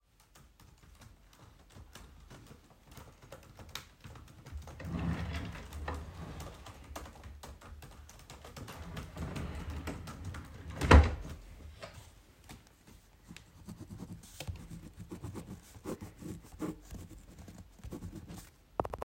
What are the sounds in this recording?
keyboard typing, wardrobe or drawer